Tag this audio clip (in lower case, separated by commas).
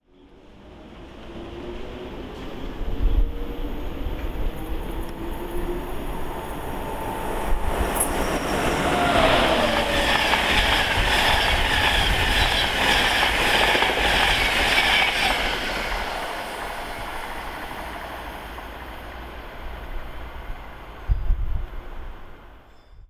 vehicle, train, rail transport